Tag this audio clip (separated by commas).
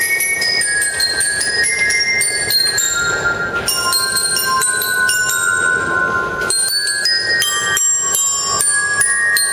Musical instrument, Music, Glockenspiel